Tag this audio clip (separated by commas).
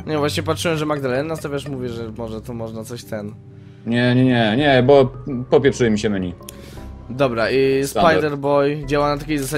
Music, Speech